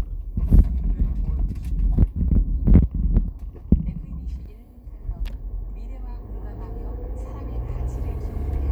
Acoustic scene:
car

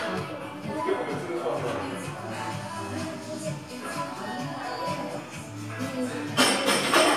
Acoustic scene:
crowded indoor space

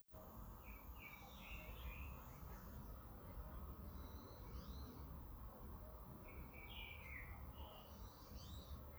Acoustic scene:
park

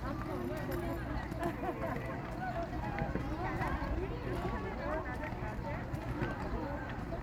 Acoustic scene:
park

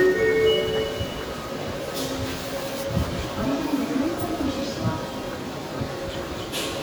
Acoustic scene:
subway station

